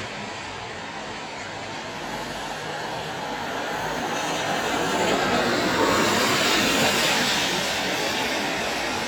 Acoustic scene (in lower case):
street